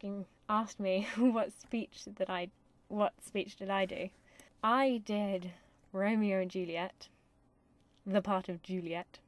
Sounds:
Speech, Narration

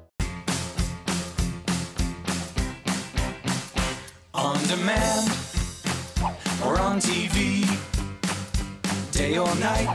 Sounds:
Music

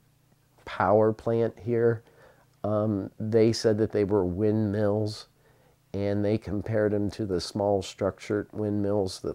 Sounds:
Speech

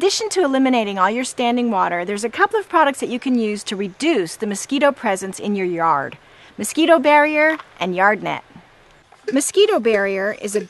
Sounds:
Speech

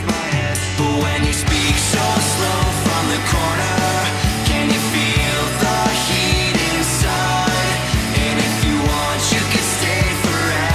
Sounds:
Music, Exciting music

